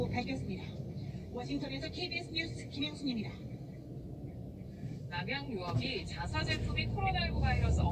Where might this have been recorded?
in a car